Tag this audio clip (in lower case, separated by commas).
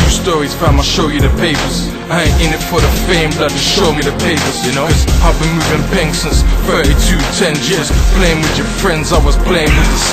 music